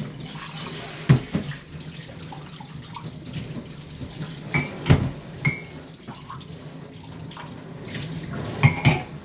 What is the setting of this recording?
kitchen